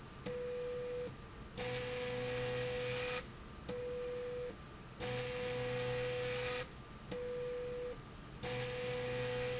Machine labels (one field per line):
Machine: slide rail